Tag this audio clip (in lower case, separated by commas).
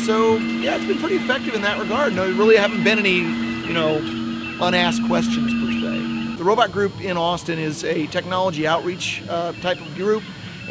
speech